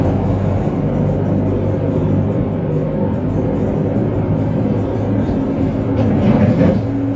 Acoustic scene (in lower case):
bus